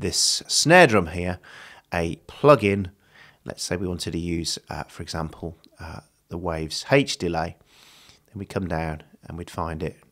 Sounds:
Speech

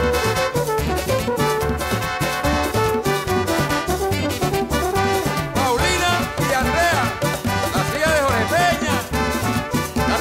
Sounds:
Music

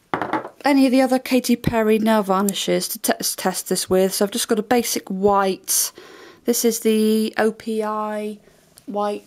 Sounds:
Speech

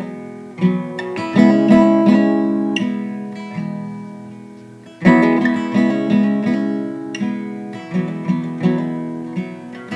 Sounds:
Music

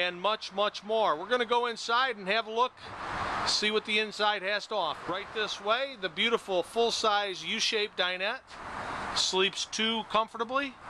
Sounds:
Speech

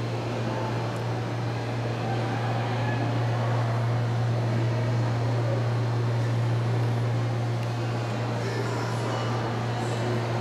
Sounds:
Speech

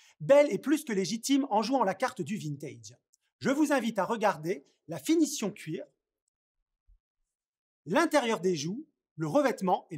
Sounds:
Speech

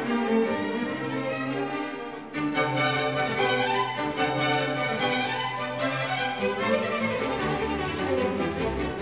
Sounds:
Musical instrument, Music, Violin

